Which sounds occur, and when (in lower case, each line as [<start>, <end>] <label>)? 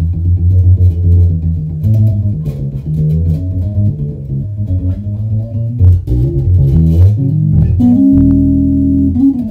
[0.00, 9.50] background noise
[0.00, 9.50] music